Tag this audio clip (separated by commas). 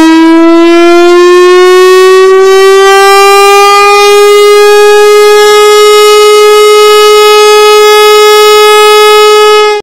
Civil defense siren, Siren